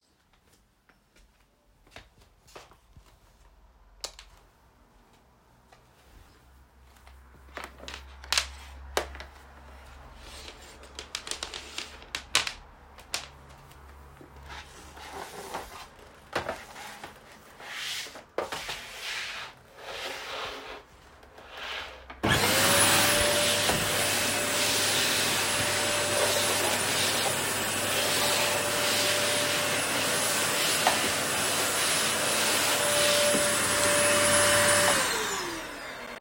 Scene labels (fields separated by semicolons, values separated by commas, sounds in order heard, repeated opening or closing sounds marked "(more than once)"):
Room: hallway, bedroom; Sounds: footsteps, light switch, vacuum cleaner